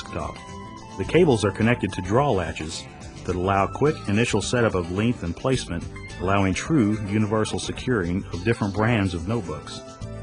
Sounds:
speech, music

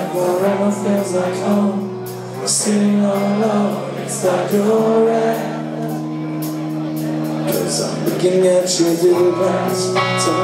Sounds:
speech, music

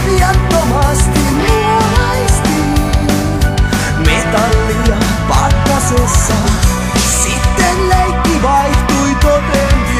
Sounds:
music

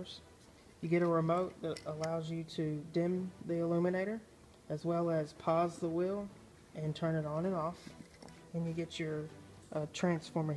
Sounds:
music, speech

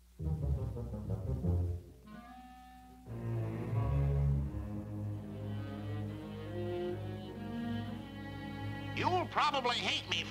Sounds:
foghorn

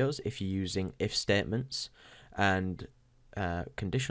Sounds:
speech

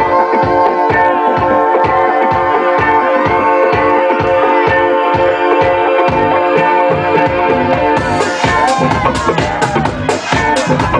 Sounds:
sound effect, music

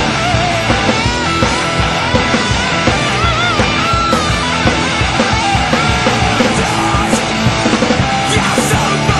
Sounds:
music

